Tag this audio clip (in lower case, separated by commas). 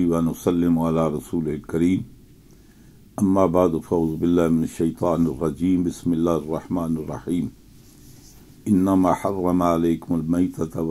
speech